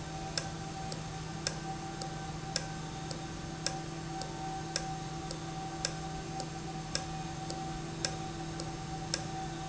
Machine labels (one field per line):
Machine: valve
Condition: normal